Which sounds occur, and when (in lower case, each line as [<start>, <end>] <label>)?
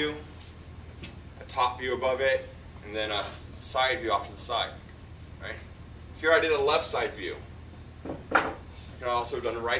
[0.00, 0.24] male speech
[0.00, 9.75] mechanisms
[0.23, 0.47] surface contact
[0.94, 1.06] generic impact sounds
[1.31, 1.41] generic impact sounds
[1.32, 2.49] male speech
[2.11, 2.48] surface contact
[2.72, 3.24] male speech
[3.06, 3.37] surface contact
[3.56, 4.80] male speech
[5.09, 5.35] surface contact
[5.38, 5.59] male speech
[6.13, 7.36] male speech
[8.01, 8.10] generic impact sounds
[8.29, 8.51] generic impact sounds
[8.62, 8.93] surface contact
[8.93, 9.75] male speech